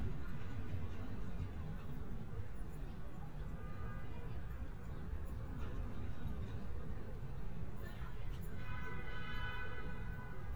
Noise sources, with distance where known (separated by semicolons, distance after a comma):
car horn